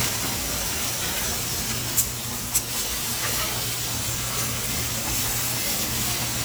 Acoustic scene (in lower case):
restaurant